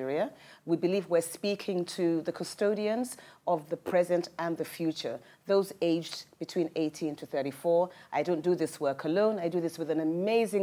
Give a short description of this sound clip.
A woman is giving a speech